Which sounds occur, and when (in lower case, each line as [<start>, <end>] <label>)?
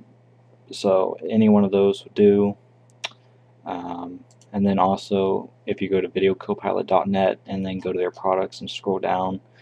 [0.00, 9.61] mechanisms
[3.00, 3.21] human sounds
[4.37, 4.46] clicking